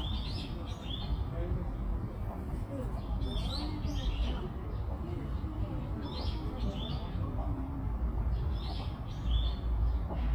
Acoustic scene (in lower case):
park